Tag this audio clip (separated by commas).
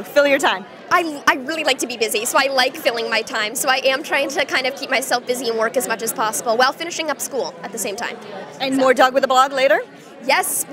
Speech